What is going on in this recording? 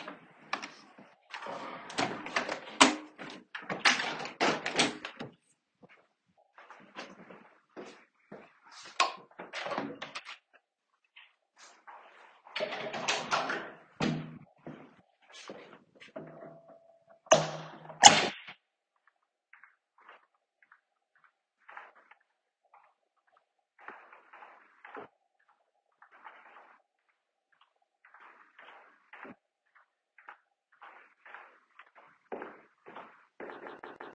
I stood up from a chair, and the chair movement sound is audible as I got up. I then closed the window and walked to the light switch to turn off the light. After that, I opened the first door, opened the second door, went out, and closed the second door behind me. The elevator sound is heard afterwards, and I then walked through the hallway.